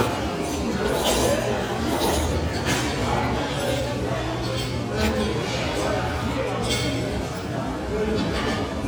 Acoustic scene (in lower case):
restaurant